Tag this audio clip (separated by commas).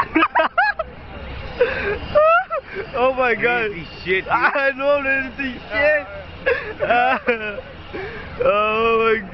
outside, urban or man-made, Speech